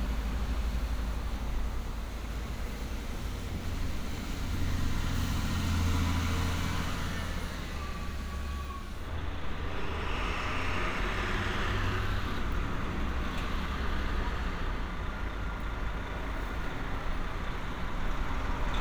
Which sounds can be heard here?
medium-sounding engine